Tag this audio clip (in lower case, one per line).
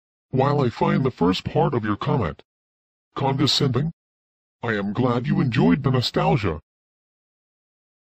speech